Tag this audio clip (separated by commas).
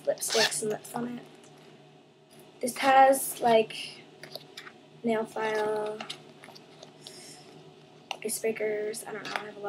inside a small room, Speech